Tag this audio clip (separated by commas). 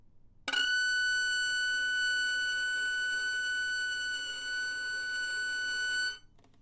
Musical instrument, Bowed string instrument, Music